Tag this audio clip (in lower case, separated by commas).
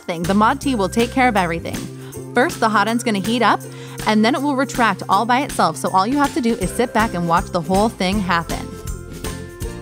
music, speech